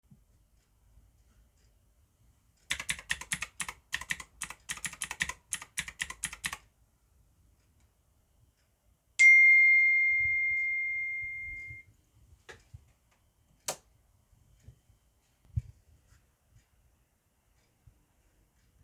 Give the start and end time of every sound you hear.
2.7s-6.6s: keyboard typing
9.2s-12.2s: phone ringing
13.6s-13.8s: light switch

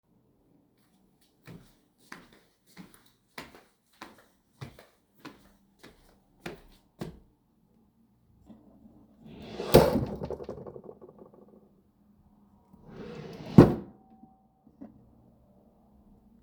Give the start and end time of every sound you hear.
1.4s-7.3s: footsteps
9.2s-11.3s: wardrobe or drawer
12.7s-14.1s: wardrobe or drawer

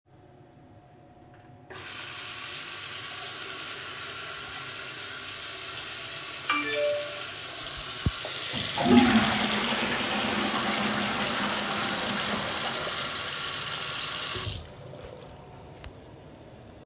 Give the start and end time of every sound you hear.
1.6s-14.7s: running water
6.5s-7.0s: phone ringing
8.5s-12.5s: toilet flushing

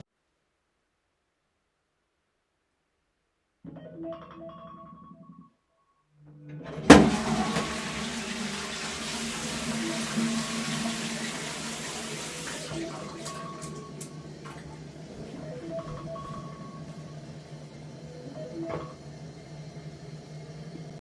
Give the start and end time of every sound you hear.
3.6s-19.1s: phone ringing
6.5s-21.0s: toilet flushing
9.0s-12.9s: running water

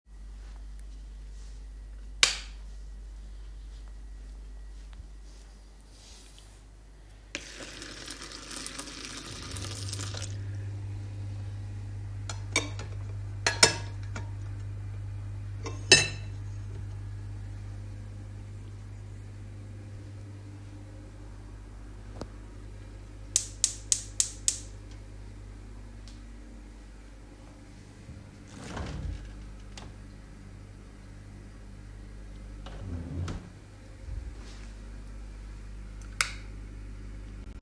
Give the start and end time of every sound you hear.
2.0s-2.7s: light switch
7.1s-10.5s: running water
12.1s-14.3s: cutlery and dishes
15.5s-16.5s: cutlery and dishes
28.3s-30.2s: wardrobe or drawer
32.3s-33.7s: wardrobe or drawer
35.9s-36.6s: light switch

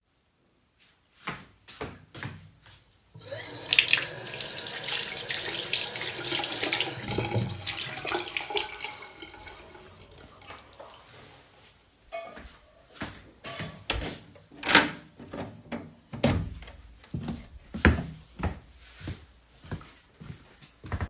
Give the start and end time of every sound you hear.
1.2s-3.1s: footsteps
3.2s-10.0s: running water
10.4s-11.0s: light switch
12.1s-14.3s: footsteps
14.5s-16.7s: door
17.1s-21.1s: footsteps

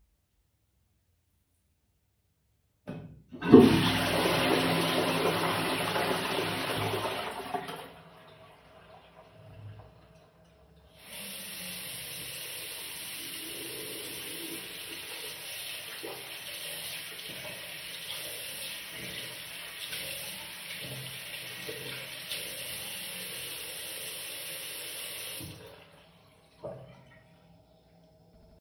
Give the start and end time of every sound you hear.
2.7s-8.1s: toilet flushing
11.0s-25.8s: running water

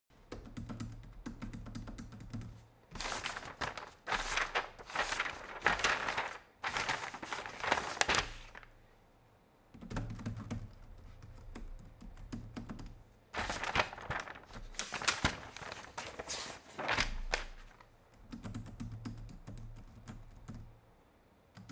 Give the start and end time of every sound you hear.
0.3s-2.5s: keyboard typing
9.8s-13.0s: keyboard typing
18.3s-20.7s: keyboard typing
21.5s-21.5s: keyboard typing

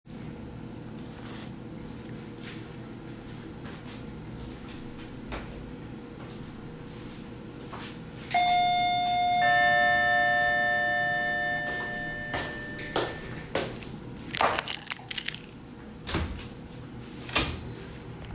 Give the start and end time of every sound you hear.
8.3s-13.5s: bell ringing
12.3s-14.0s: footsteps
14.3s-15.5s: keys

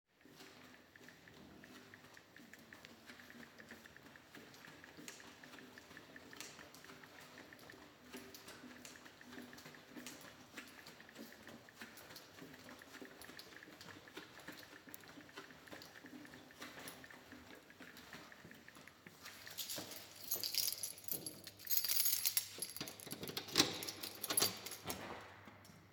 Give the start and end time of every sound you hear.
0.1s-21.3s: footsteps
19.5s-25.2s: keys
23.1s-25.2s: door

